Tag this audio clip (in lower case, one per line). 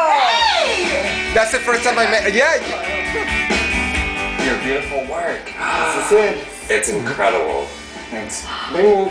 music
speech